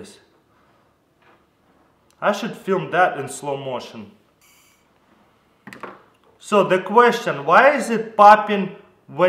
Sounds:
Speech

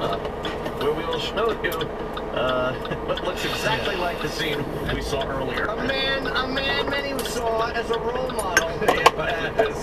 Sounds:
Speech, Vehicle

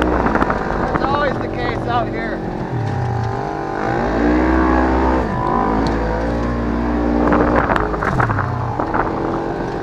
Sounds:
Speech

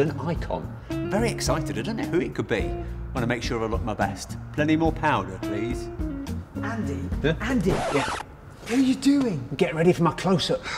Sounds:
Music, Speech

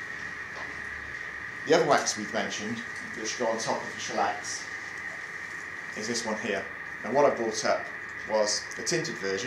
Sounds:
inside a large room or hall, Speech

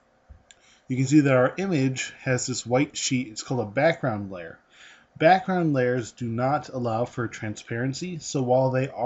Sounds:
Speech

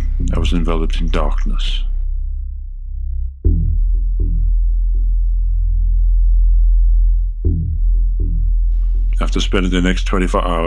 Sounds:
Music, Speech

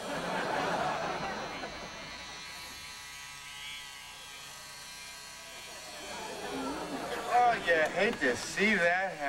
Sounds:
Speech, electric razor

